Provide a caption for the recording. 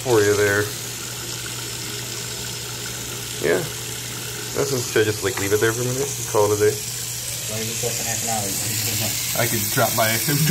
Water streaming, men speaking